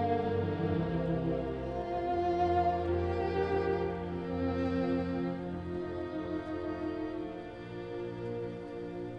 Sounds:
musical instrument
fiddle
music

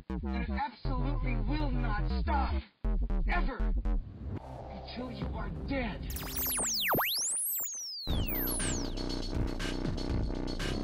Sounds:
music
speech

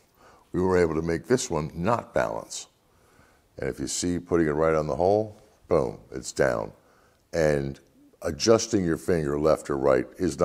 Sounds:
speech

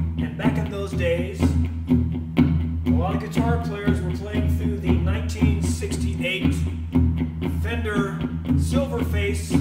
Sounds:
music
speech

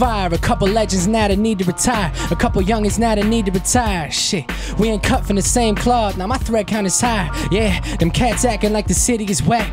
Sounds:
music

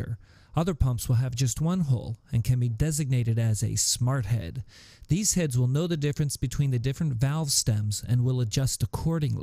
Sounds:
speech

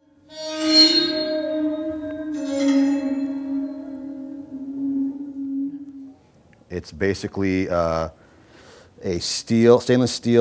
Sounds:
speech

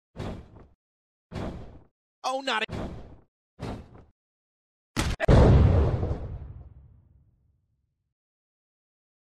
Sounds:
speech

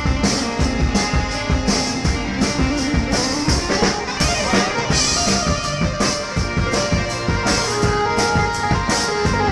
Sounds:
piano
electric piano
keyboard (musical)

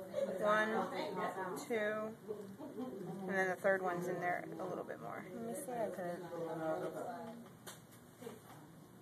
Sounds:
speech

